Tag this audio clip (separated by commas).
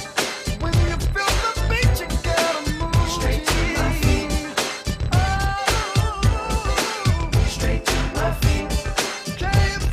Music